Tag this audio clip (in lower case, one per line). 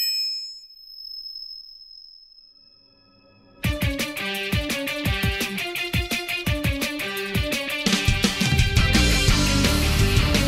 music